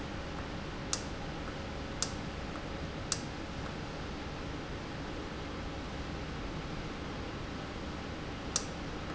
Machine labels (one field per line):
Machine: valve